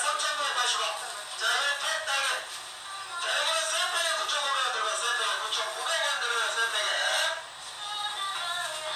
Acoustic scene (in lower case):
crowded indoor space